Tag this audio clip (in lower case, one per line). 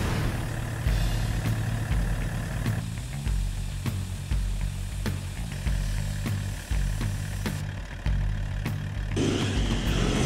music